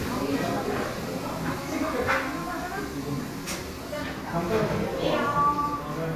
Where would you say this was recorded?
in a crowded indoor space